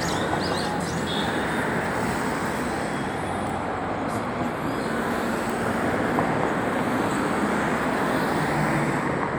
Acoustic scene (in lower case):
street